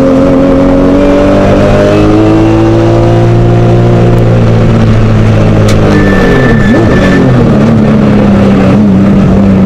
The motor of a car and squealing